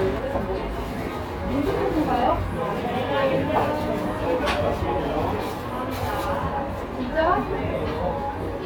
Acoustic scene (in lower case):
cafe